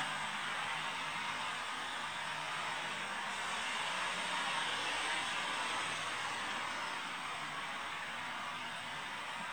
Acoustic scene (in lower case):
street